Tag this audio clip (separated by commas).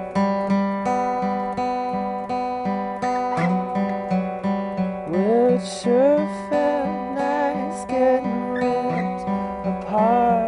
Music